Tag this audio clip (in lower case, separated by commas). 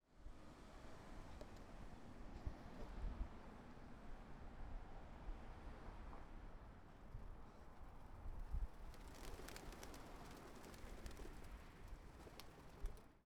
bird, animal, wild animals